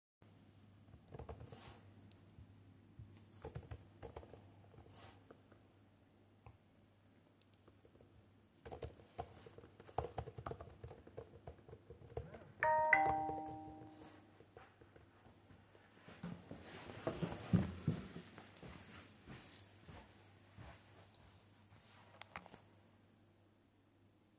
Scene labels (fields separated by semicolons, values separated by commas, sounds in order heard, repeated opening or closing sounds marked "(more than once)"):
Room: bedroom; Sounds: keyboard typing, phone ringing, footsteps